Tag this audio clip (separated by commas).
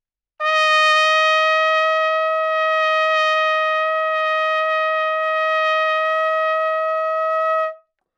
Brass instrument, Trumpet, Musical instrument, Music